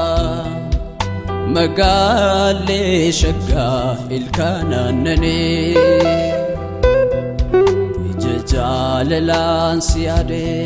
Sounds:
music

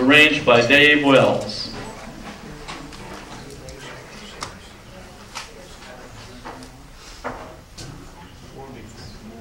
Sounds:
speech

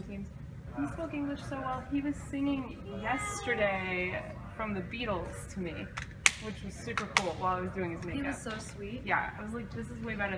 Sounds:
speech

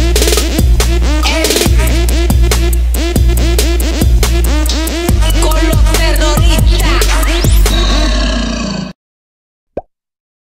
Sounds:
music

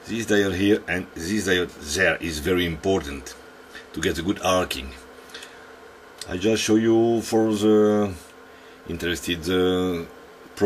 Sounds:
speech

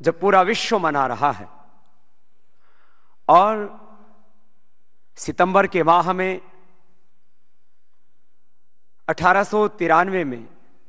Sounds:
speech
man speaking
narration

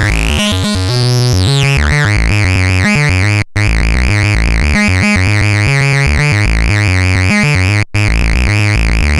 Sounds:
synthesizer

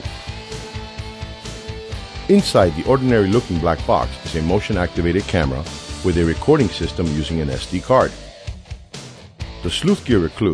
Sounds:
music
speech

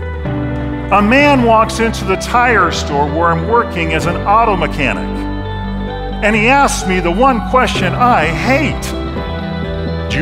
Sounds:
speech
music

